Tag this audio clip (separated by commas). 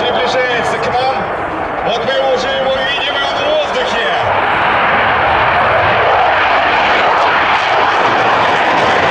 airplane flyby